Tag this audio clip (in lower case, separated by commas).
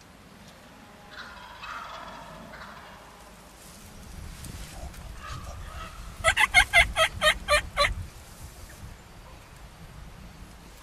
bird, animal